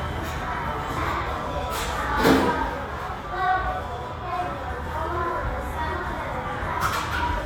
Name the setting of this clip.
restaurant